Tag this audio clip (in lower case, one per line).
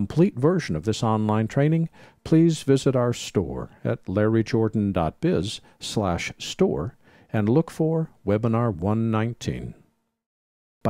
speech